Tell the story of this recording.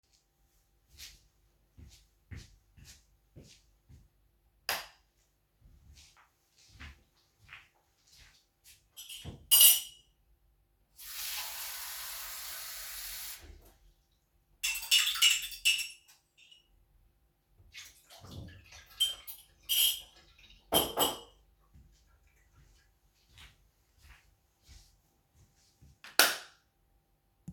I turned on the light of kitchen, filled my cup with water and then walked back and turned the lights off.